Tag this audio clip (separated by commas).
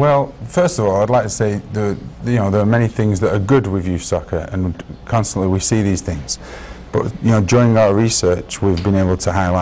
Speech